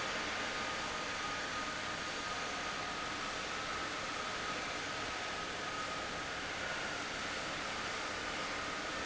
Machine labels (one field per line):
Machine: fan